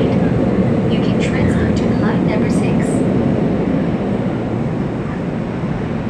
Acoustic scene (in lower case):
subway train